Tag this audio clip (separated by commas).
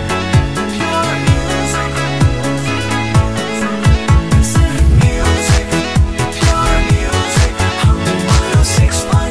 Music